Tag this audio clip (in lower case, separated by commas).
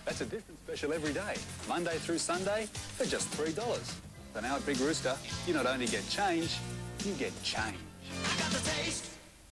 music, speech